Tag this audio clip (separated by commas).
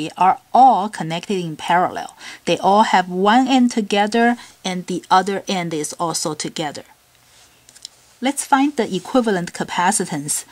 Speech